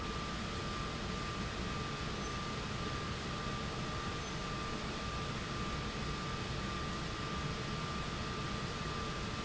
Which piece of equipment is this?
pump